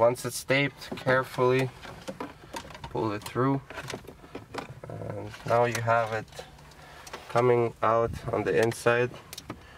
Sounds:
Car, Speech, Vehicle

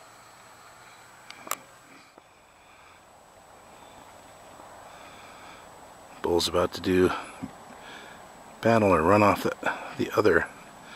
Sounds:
Animal, Speech

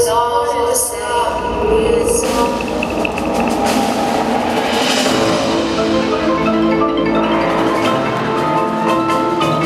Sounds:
Drum, Mallet percussion, Percussion, Glockenspiel, xylophone, Snare drum

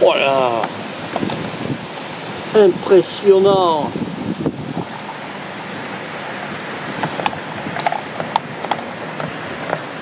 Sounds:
wind noise

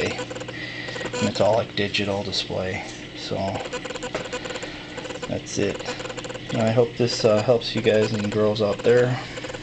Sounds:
Speech

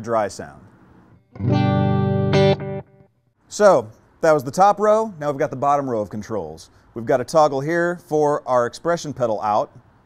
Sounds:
Effects unit, Music, Musical instrument, Plucked string instrument, Speech, Guitar

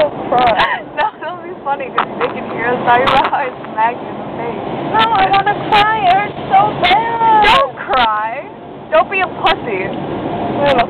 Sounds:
Vehicle, Speech, Car

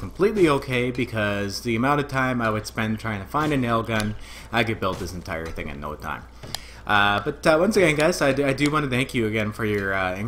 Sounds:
Speech

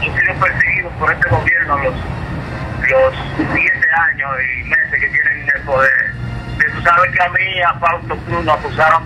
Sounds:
Music, Radio, Speech

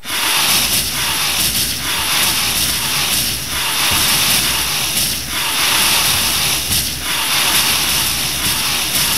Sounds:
Sound effect

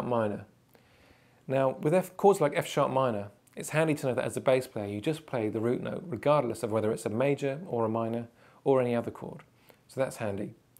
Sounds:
Speech

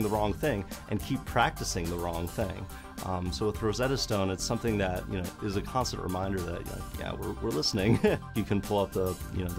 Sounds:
man speaking, Narration, Music, Speech

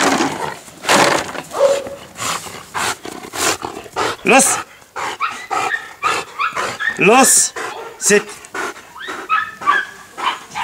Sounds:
Bark, Speech, pets, Animal, Dog

